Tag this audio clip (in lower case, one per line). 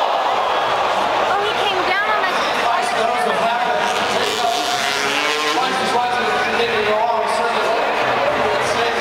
speech